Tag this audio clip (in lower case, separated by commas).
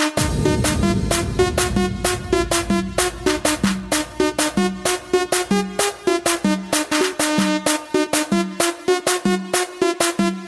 music